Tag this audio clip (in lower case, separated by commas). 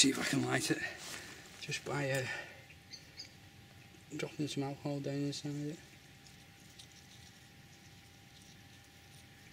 speech, outside, rural or natural